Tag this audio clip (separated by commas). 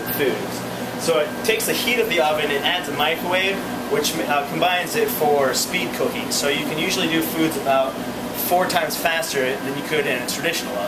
Speech, Microwave oven